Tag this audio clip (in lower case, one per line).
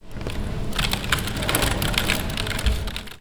typing
computer keyboard
domestic sounds